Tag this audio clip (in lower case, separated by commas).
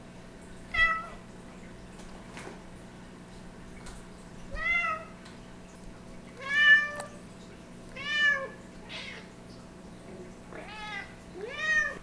cat, animal, meow, pets